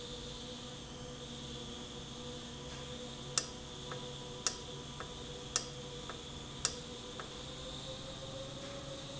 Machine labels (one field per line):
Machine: valve